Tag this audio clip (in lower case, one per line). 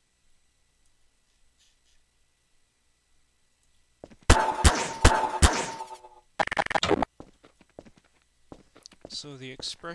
speech